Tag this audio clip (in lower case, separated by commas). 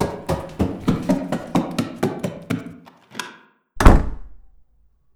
home sounds, door, slam, run